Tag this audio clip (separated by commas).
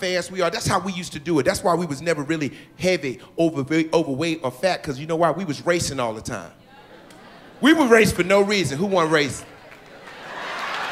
Speech